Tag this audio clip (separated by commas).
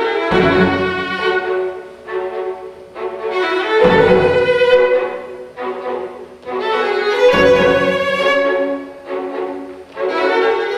Musical instrument, Music, fiddle